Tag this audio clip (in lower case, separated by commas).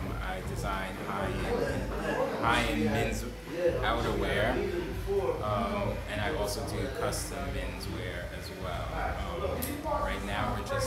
speech